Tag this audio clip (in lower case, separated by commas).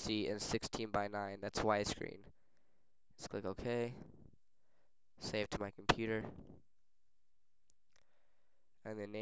inside a small room, speech